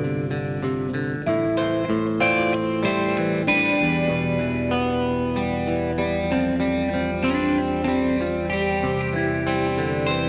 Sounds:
tender music
music

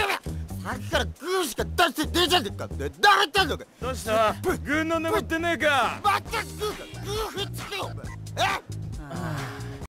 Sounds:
music
speech

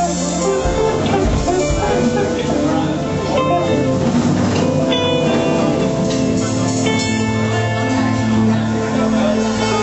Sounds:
music
speech

